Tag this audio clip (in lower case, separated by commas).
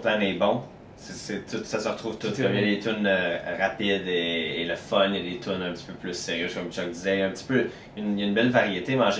speech